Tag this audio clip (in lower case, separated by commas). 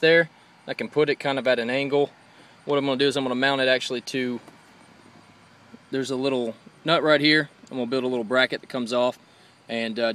speech